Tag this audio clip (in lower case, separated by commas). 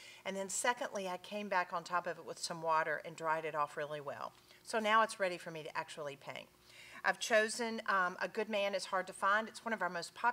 speech